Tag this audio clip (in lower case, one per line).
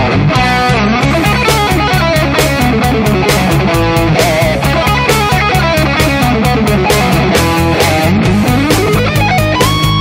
guitar
music
musical instrument
strum
plucked string instrument